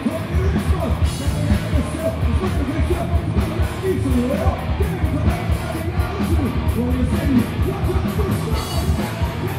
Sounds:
Music

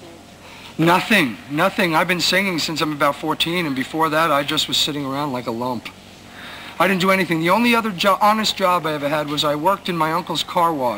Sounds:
Speech, inside a small room

